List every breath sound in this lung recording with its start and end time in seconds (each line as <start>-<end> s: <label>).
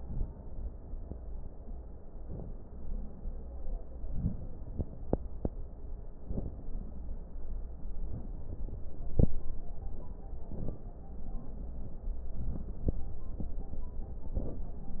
2.16-2.65 s: inhalation
3.98-4.46 s: inhalation
6.18-6.66 s: inhalation
10.40-10.89 s: inhalation
14.29-14.77 s: inhalation